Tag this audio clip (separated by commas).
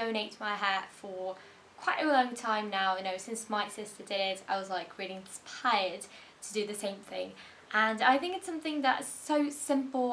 Speech